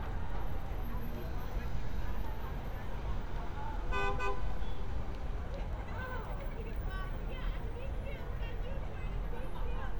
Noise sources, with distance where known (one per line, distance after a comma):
car horn, near
person or small group talking